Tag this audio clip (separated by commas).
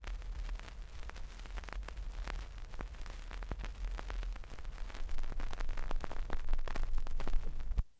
Crackle